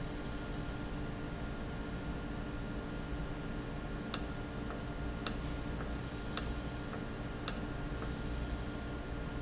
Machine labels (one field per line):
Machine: valve